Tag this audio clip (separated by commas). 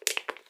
Crushing